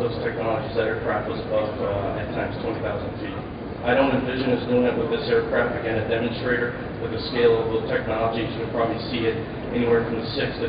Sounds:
man speaking
speech

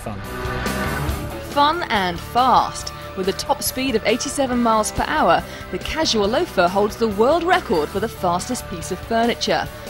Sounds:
speech
music

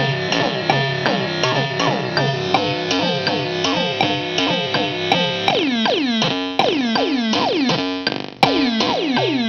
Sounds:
music
sampler

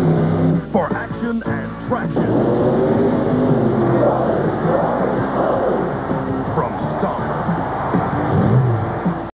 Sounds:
music
speech
truck
vehicle

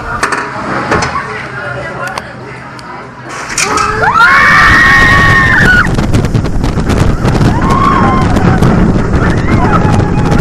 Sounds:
roller coaster running

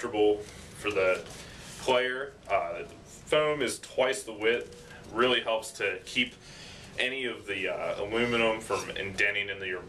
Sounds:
speech

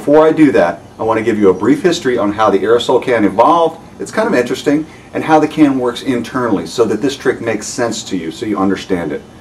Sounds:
speech

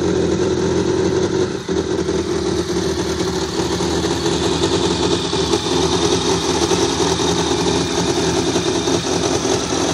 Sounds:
vehicle
engine
idling

